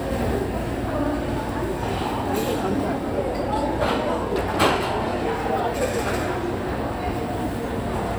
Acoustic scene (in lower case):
restaurant